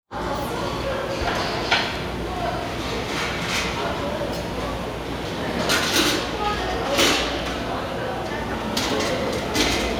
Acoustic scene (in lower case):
restaurant